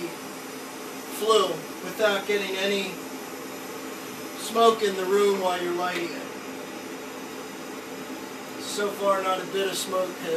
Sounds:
inside a small room, speech

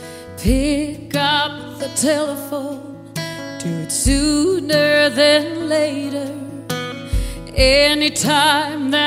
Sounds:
music, soul music

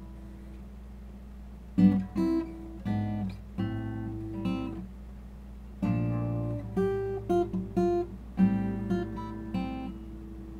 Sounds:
plucked string instrument, acoustic guitar, guitar, music, musical instrument, strum

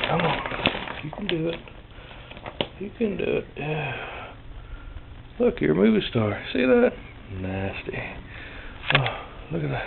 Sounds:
inside a small room, speech

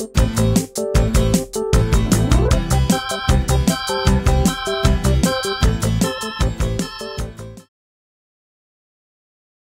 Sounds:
music

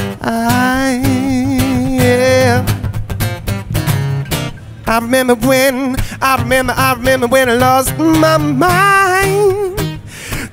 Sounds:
music

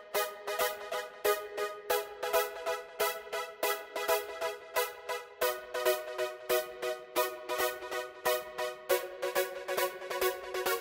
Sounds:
music, electronic music

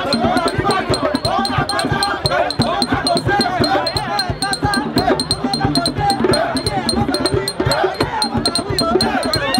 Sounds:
music, male singing

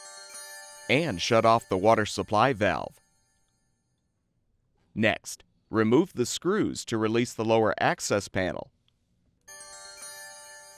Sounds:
speech, music

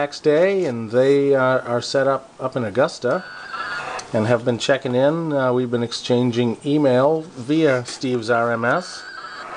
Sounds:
speech

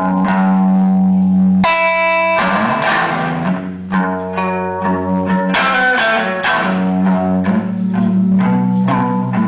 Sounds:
double bass, guitar, music

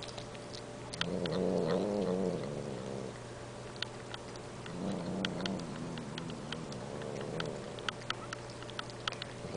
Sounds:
domestic animals, animal, caterwaul, cat

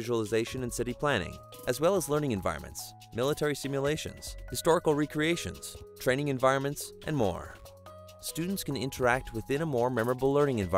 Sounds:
music, speech

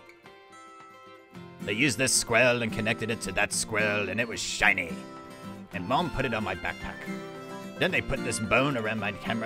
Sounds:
music, speech

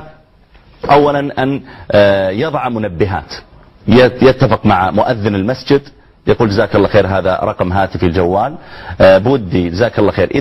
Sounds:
speech

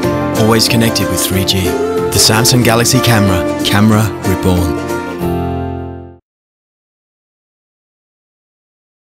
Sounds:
speech, music

